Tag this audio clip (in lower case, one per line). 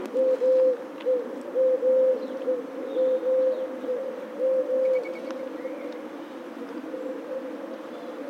animal
bird
wild animals